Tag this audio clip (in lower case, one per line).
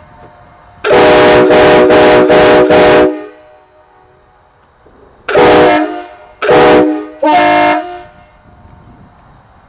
train horning
train horn